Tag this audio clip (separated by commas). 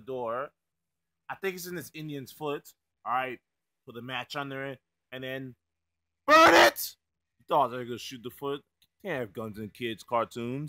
Speech